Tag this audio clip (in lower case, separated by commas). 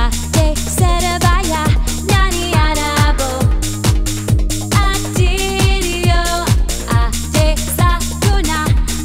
music